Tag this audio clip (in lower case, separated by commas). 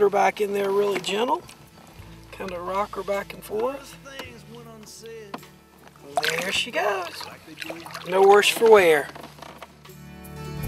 music, speech